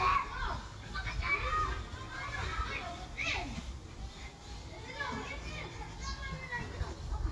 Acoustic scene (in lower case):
park